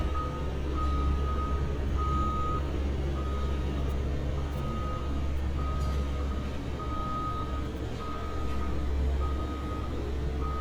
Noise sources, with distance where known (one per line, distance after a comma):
reverse beeper